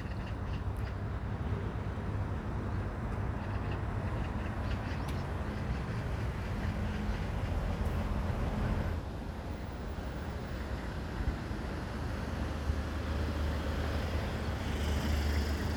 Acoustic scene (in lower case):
street